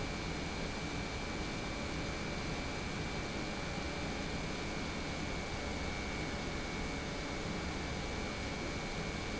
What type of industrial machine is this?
pump